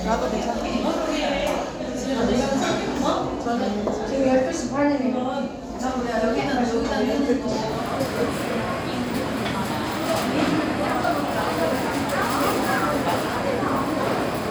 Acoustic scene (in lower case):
crowded indoor space